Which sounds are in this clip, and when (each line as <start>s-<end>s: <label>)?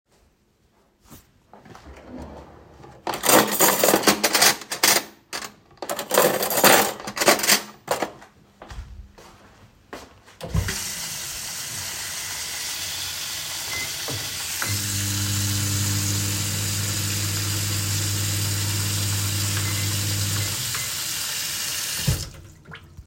0.9s-3.1s: wardrobe or drawer
3.0s-8.5s: cutlery and dishes
8.5s-10.2s: footsteps
10.4s-22.6s: running water
13.6s-22.4s: microwave